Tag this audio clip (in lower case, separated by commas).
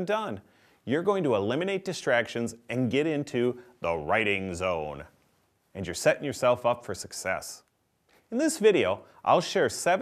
speech